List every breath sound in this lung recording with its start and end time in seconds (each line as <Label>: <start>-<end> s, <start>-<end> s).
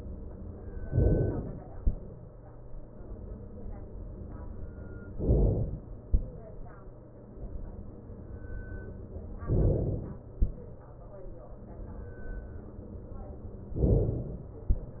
Inhalation: 0.88-1.78 s, 5.16-6.06 s, 9.48-10.38 s, 13.82-14.72 s